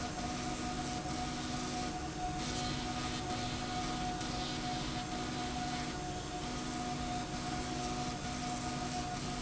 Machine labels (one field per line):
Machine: slide rail